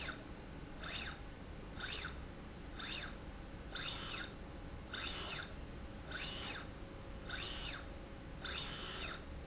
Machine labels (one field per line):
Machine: slide rail